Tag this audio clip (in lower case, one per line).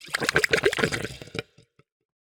gurgling
water